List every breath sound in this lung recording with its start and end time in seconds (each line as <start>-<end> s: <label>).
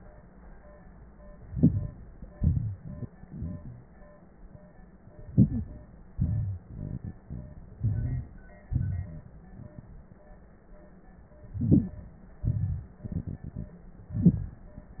1.41-1.94 s: inhalation
2.31-2.81 s: exhalation
5.29-5.67 s: inhalation
6.19-6.64 s: exhalation
7.80-8.26 s: inhalation
8.71-9.26 s: exhalation
11.54-11.99 s: inhalation
12.45-12.94 s: exhalation
14.13-14.63 s: inhalation